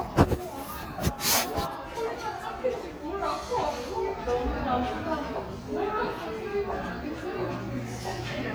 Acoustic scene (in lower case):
crowded indoor space